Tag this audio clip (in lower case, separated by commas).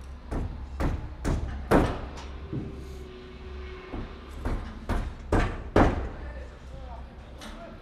hammer, tools